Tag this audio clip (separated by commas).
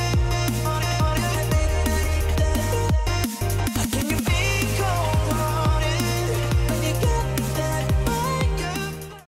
Music